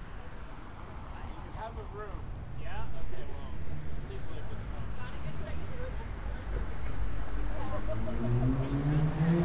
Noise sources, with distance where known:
medium-sounding engine, near; person or small group talking, near

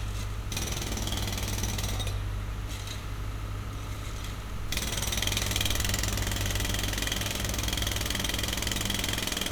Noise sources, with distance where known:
jackhammer, near

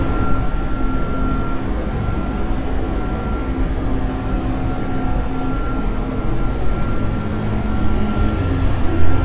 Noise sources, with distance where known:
large-sounding engine, near; reverse beeper, far

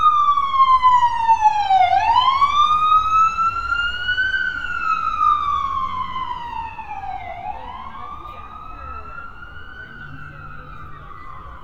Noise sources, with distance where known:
siren, near; person or small group talking

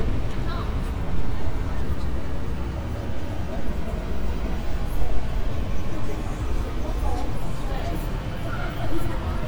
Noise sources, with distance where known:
person or small group talking, far

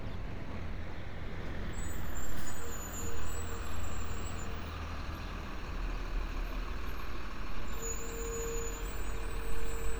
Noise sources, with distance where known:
large-sounding engine, near

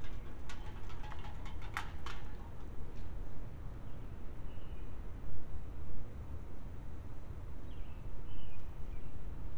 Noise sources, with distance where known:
background noise

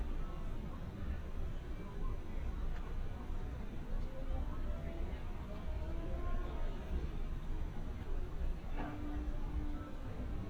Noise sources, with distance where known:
music from an unclear source, far; person or small group talking, far

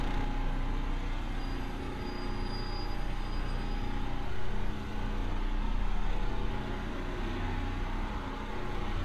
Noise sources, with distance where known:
large-sounding engine, near

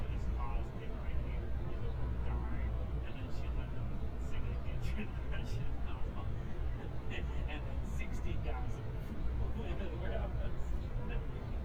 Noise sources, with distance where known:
person or small group talking, near

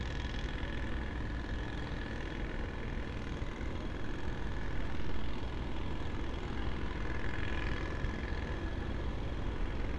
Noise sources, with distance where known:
unidentified impact machinery, far

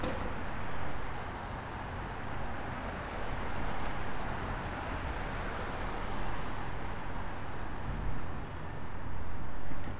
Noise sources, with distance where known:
medium-sounding engine

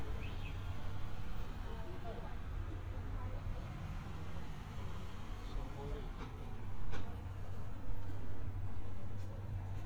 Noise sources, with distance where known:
unidentified alert signal; person or small group talking, near

